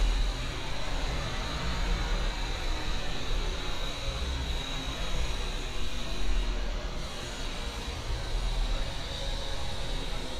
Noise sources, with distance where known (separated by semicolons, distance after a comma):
engine of unclear size, near